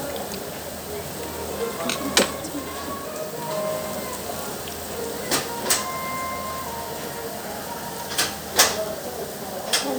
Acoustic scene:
restaurant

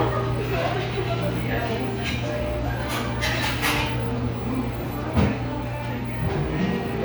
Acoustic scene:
cafe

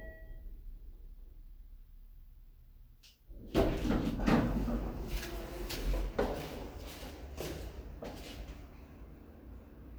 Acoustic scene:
elevator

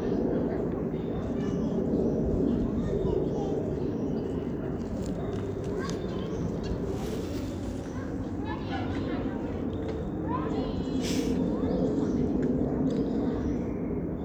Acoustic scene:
park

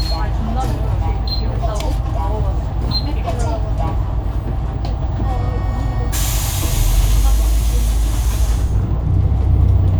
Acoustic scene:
bus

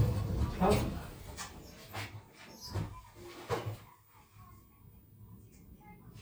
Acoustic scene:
elevator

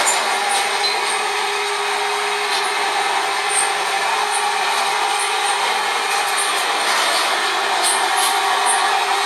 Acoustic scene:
subway train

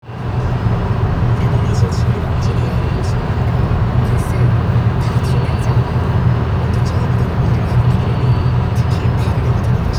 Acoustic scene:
car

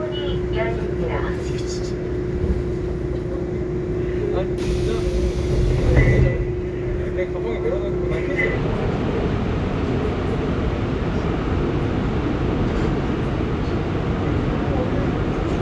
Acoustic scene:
subway train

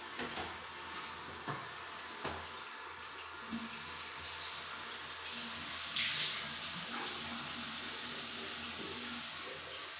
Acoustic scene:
restroom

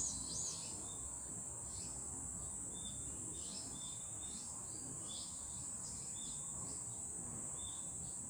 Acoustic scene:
park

